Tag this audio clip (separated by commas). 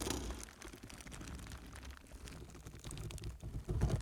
Crumpling